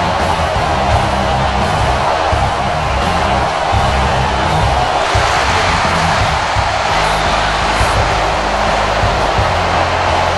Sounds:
Music

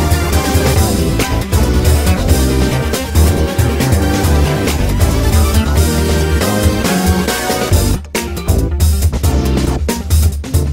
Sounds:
Music, Background music

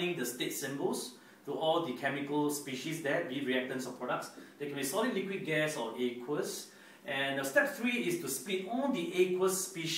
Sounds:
Speech

